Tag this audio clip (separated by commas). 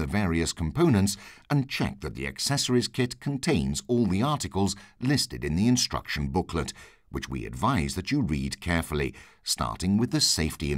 Speech